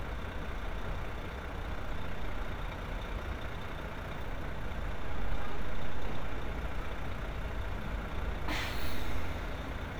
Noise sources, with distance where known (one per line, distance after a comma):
large-sounding engine, near